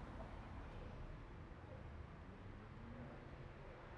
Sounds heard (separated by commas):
people talking